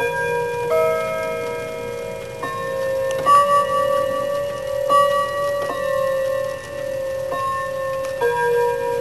A bell ringing as a clock is ticking